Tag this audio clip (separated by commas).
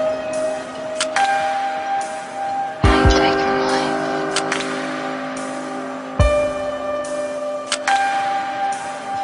Electronic music, Music, Dubstep